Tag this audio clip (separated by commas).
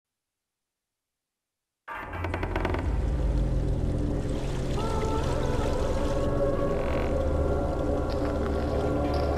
Music